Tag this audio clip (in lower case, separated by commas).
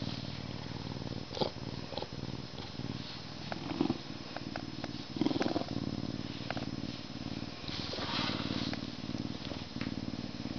cat purring